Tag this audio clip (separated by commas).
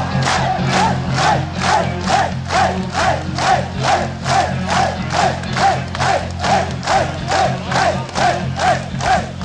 Music